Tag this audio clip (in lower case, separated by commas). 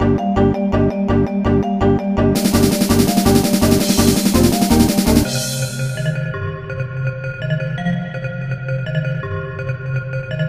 music, techno, electronic music